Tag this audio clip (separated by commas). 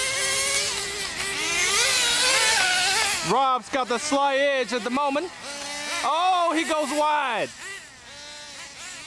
Speech